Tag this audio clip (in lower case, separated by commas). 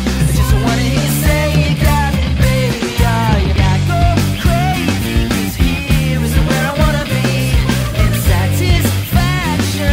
exciting music, jazz, blues, music